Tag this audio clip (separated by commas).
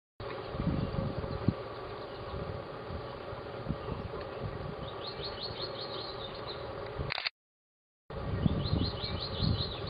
Bird, outside, rural or natural